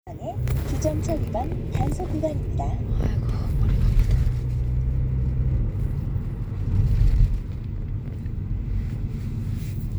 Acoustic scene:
car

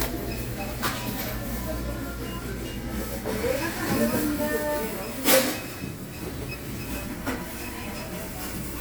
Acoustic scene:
crowded indoor space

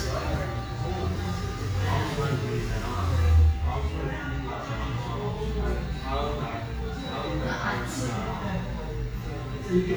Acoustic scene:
cafe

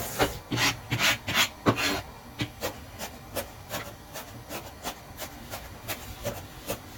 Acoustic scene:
kitchen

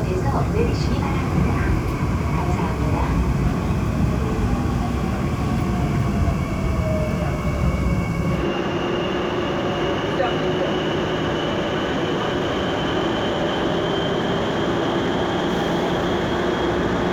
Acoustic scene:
subway train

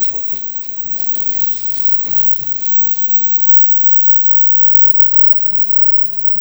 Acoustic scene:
kitchen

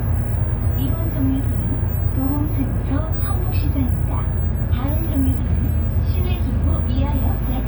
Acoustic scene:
bus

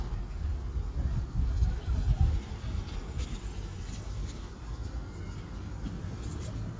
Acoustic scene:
residential area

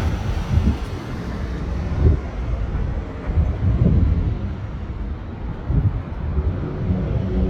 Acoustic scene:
residential area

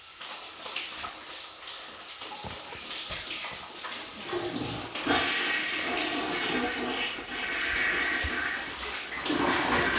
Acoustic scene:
restroom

